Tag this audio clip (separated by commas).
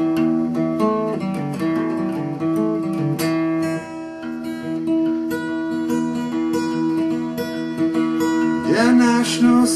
Music